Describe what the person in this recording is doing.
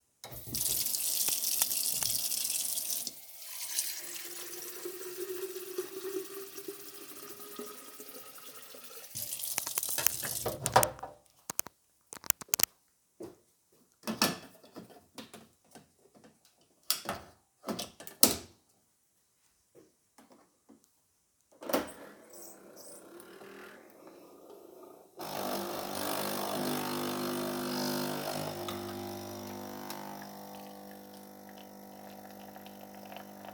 I filled my coffee machine's water container, then walked to the coffee machine placed the container and made an espresso.